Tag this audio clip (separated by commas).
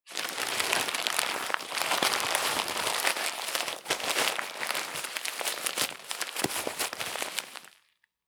crinkling